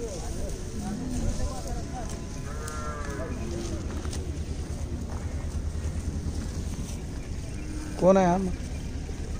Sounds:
bull bellowing

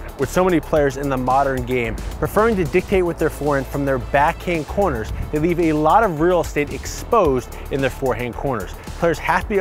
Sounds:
speech
music

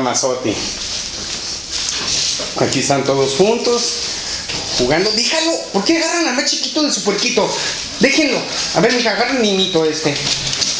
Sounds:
speech

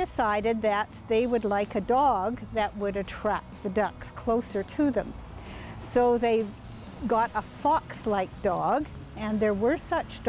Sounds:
speech

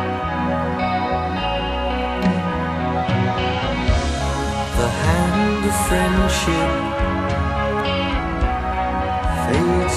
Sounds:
music
independent music

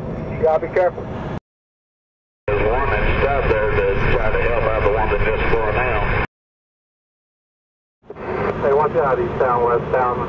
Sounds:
speech
motor vehicle (road)
vehicle

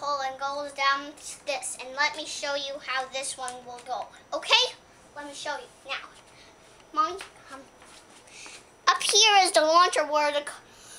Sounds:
speech

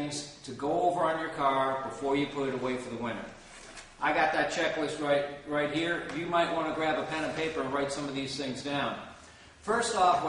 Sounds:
speech

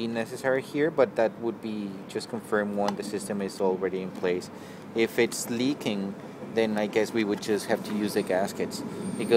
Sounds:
speech
inside a small room

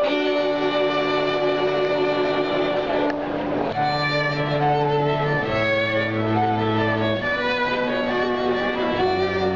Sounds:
music
fiddle
bowed string instrument
musical instrument
string section
cello

